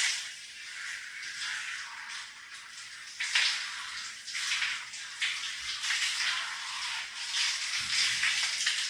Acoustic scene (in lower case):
restroom